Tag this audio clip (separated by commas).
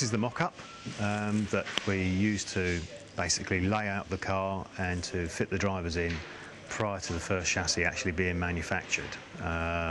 Speech